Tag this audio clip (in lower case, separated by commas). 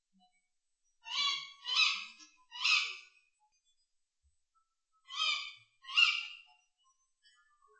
wild animals, animal, bird, bird song